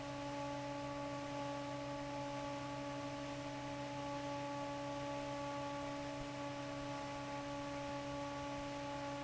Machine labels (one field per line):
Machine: fan